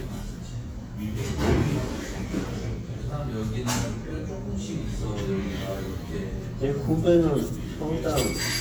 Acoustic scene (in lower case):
restaurant